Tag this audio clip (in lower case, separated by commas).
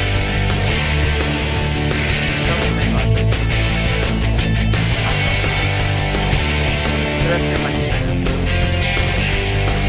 music, speech